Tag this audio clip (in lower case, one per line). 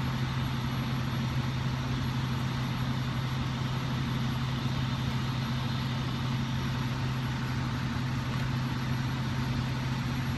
vehicle